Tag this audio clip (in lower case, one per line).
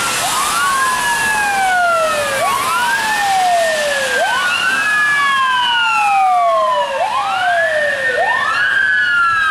siren
emergency vehicle
police car (siren)